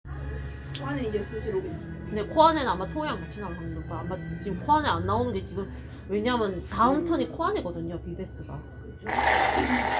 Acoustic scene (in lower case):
cafe